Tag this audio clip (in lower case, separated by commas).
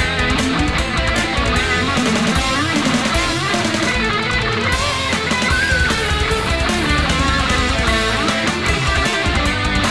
music